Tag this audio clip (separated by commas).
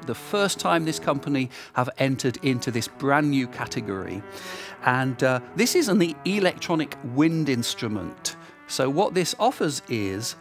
Music, Speech